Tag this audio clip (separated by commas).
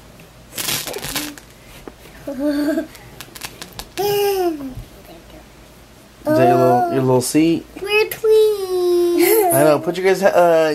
Child speech, Speech, inside a small room